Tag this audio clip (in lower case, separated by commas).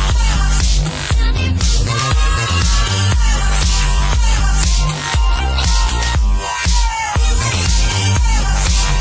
music